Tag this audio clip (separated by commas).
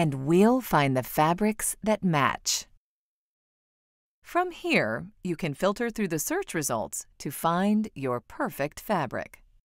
Speech